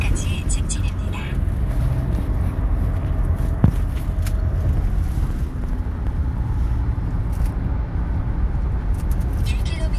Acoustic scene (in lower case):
car